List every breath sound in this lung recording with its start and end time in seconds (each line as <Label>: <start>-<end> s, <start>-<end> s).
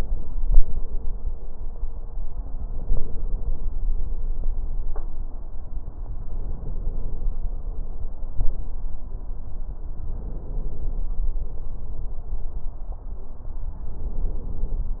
Inhalation: 2.70-3.66 s, 6.33-7.29 s, 10.10-11.05 s, 13.92-14.88 s